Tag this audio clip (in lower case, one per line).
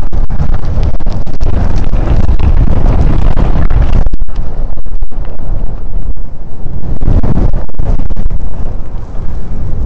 wind noise (microphone)